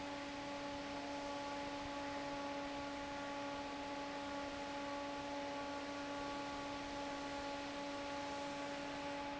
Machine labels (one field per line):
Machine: fan